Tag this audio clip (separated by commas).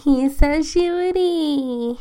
Human voice